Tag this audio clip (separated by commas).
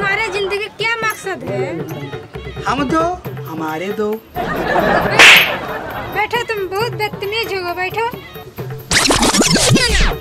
people slapping